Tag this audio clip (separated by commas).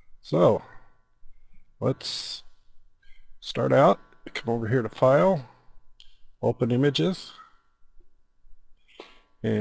Speech